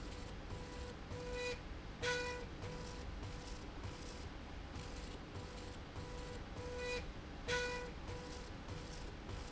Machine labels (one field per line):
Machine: slide rail